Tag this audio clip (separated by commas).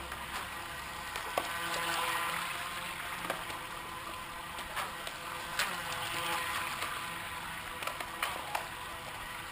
Motorboat